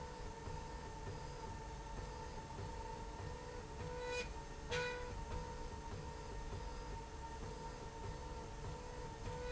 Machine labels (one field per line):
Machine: slide rail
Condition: normal